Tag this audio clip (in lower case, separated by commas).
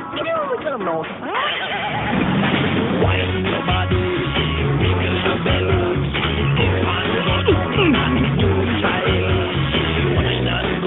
speech, music